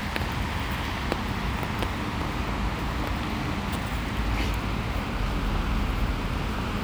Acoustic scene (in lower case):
street